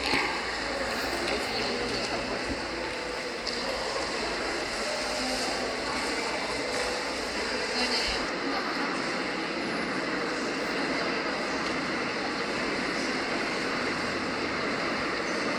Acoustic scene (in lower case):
subway station